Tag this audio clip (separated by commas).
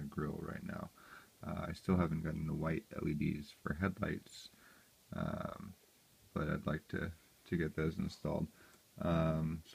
Speech